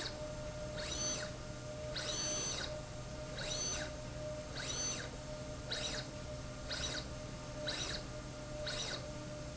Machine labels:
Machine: slide rail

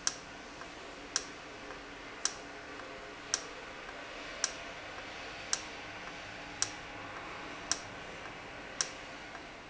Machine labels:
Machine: valve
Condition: normal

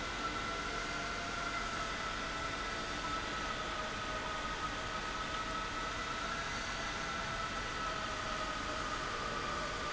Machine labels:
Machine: pump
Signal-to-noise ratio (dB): -6 dB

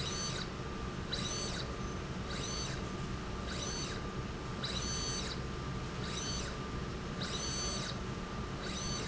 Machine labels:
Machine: slide rail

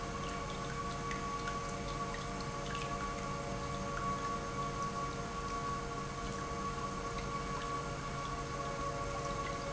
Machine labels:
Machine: pump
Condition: normal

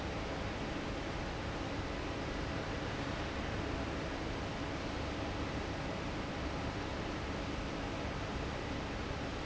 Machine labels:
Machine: fan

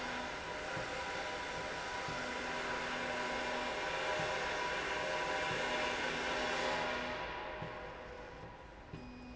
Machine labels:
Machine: slide rail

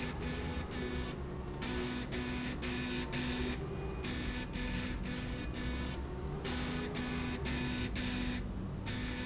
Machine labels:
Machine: slide rail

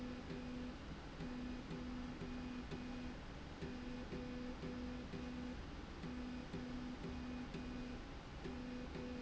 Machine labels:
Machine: slide rail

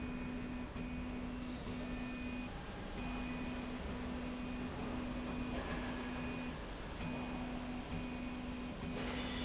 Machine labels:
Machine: slide rail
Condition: normal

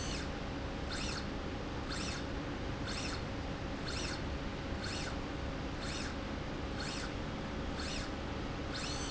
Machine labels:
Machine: slide rail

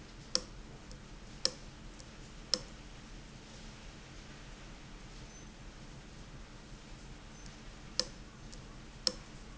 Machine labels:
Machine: valve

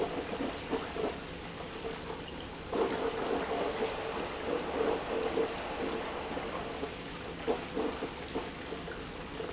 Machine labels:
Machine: pump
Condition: abnormal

